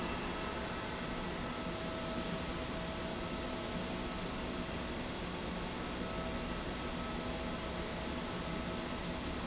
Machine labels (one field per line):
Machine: slide rail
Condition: normal